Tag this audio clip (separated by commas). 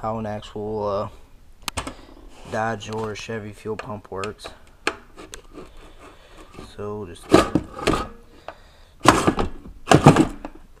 Speech